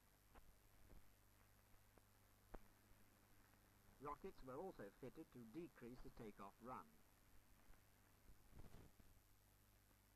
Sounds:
Speech

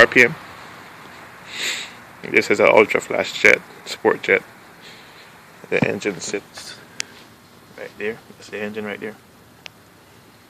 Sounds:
Speech

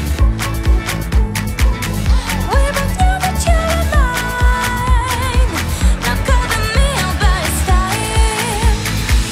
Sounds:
Music

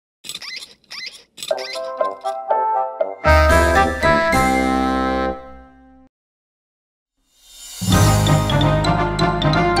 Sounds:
Music, Music for children

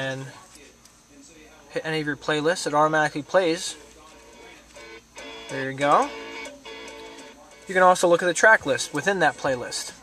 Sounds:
Music, Speech

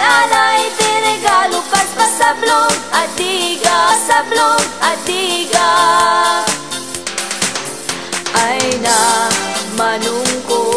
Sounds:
Music

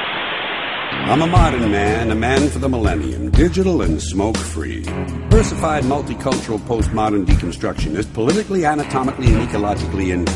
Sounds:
Music, Speech

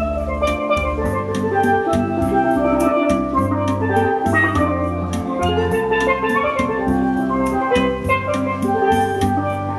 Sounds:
playing steelpan

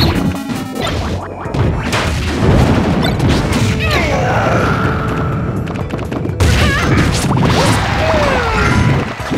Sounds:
thwack

